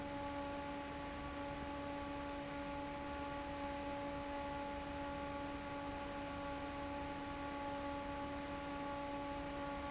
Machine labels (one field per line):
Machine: fan